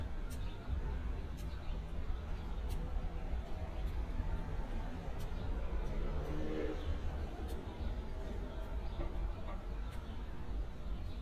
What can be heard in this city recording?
engine of unclear size